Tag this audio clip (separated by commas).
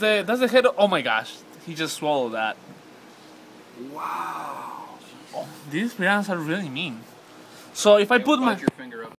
Speech